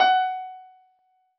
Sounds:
keyboard (musical), musical instrument, piano, music

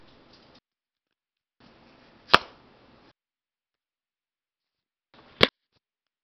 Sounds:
telephone, alarm

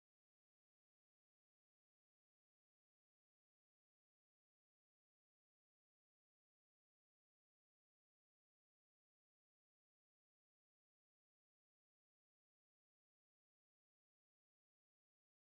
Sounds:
bird, animal, gull, wild animals

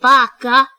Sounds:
speech, human voice, woman speaking

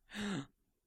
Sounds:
gasp, breathing, respiratory sounds

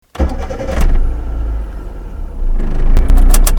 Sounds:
motor vehicle (road), vehicle

